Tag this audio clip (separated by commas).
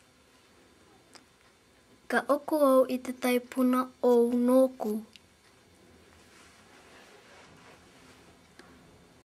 Speech